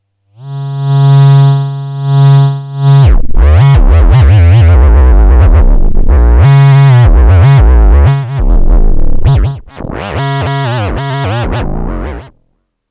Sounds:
music
musical instrument

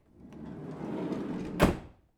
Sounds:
home sounds
door
sliding door

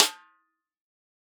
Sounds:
drum
music
snare drum
musical instrument
percussion

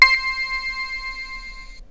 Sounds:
musical instrument
keyboard (musical)
music

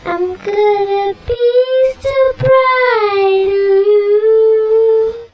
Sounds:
human voice
singing

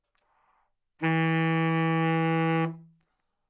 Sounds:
woodwind instrument
music
musical instrument

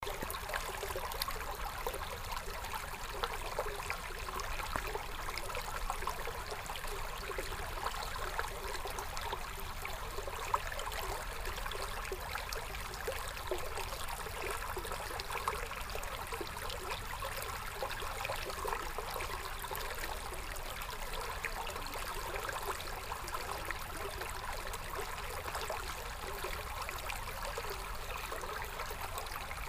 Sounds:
water
stream

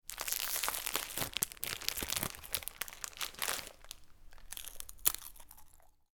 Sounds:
crinkling

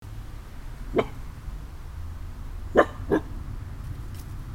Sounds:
dog
animal
domestic animals

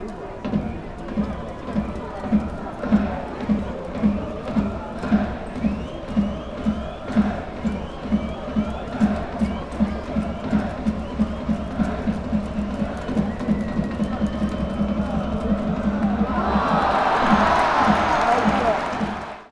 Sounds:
crowd
human group actions

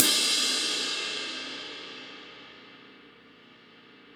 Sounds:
musical instrument
crash cymbal
percussion
cymbal
music

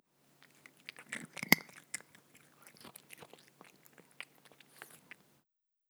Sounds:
animal
domestic animals
cat

